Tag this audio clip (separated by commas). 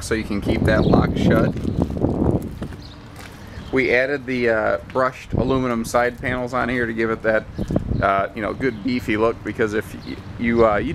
Animal, Speech